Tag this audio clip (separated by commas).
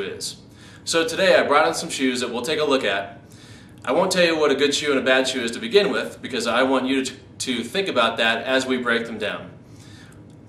inside a small room, Speech